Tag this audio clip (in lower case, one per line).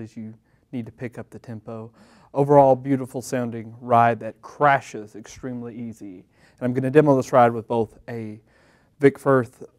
speech